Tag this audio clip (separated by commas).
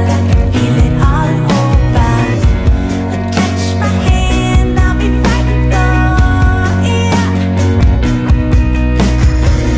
Music